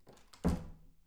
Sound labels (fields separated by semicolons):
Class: door; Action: closing; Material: wooden